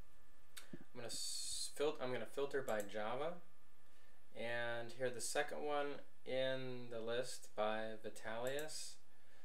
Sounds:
speech

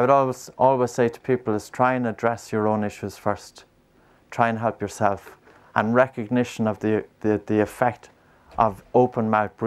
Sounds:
speech

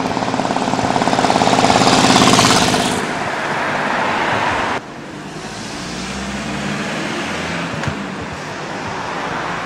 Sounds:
car passing by

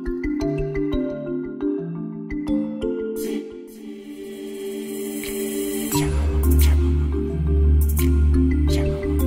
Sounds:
music

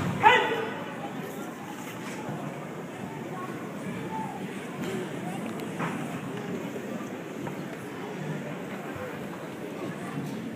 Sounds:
inside a public space, speech

